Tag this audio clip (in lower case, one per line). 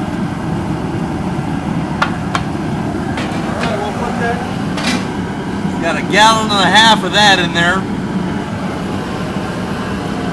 speech